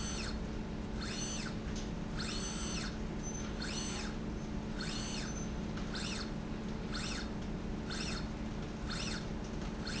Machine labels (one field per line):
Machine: slide rail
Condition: normal